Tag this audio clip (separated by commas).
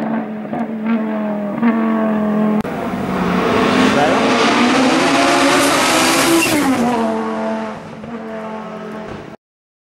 Speech